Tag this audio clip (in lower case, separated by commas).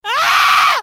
human voice, screaming